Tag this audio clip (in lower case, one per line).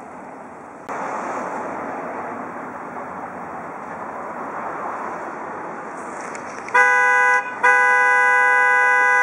car horn